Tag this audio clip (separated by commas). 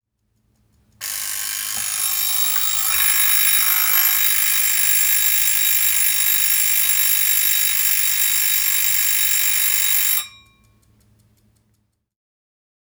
Alarm